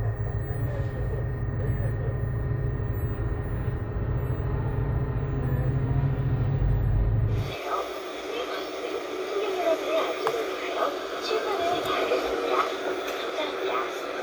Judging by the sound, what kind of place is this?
bus